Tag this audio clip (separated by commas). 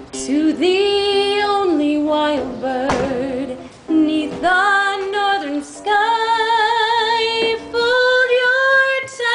Female singing, Music